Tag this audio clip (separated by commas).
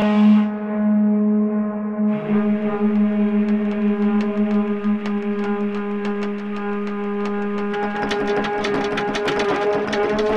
Wind instrument, Musical instrument, Music